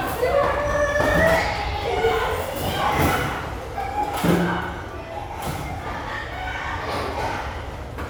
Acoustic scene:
restaurant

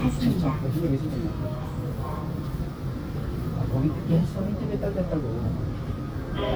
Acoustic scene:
subway train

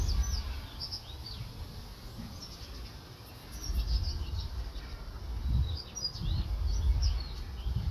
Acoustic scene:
park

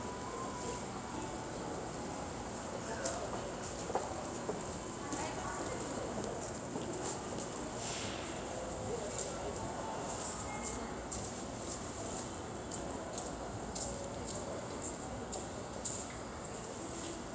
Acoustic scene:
subway station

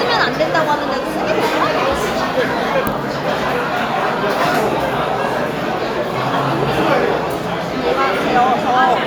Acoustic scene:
restaurant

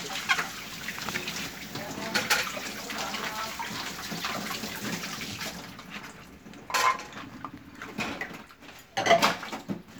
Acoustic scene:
kitchen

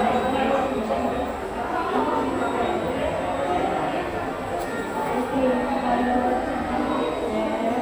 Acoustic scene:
subway station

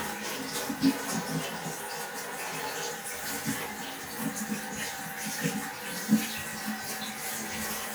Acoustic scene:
restroom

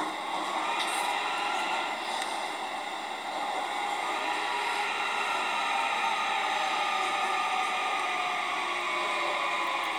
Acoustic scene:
subway train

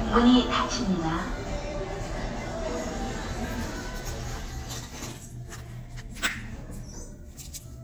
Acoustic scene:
elevator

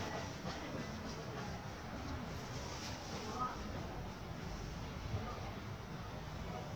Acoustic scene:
residential area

